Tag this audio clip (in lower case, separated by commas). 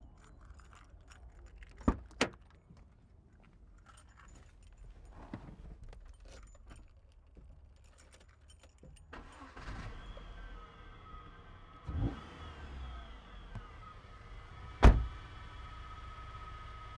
engine, engine starting